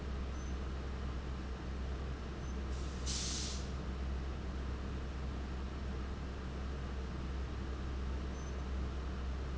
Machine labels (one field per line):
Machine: fan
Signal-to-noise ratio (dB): 0 dB